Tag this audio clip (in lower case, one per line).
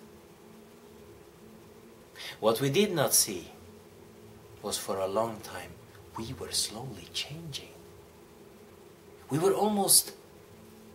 speech